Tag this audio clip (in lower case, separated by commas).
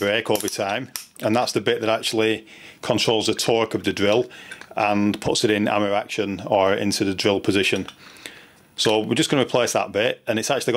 speech